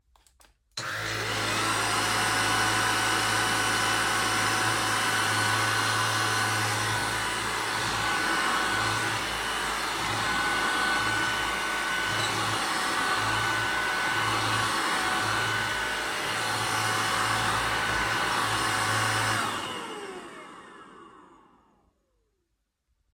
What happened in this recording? I started the vacuum cleaner, cleaned the floor and turned it off again.